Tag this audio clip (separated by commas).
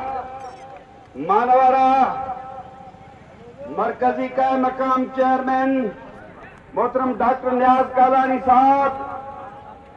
man speaking, Narration, Speech